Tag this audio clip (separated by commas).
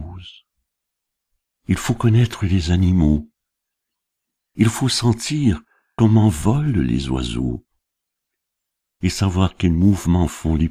Speech